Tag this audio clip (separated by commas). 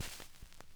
Crackle